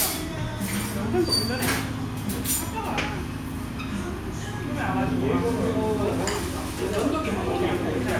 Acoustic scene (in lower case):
restaurant